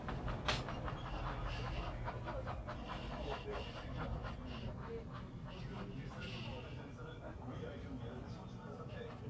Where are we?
in a crowded indoor space